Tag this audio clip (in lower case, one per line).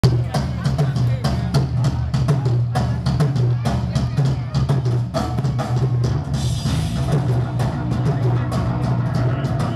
speech
music